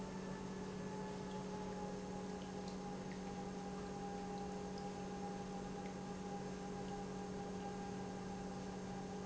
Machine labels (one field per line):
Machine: pump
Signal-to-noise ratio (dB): 6 dB